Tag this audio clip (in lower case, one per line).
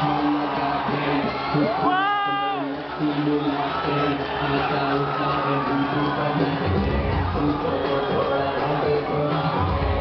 crowd